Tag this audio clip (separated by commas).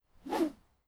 swish